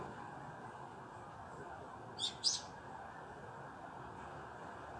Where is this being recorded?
in a residential area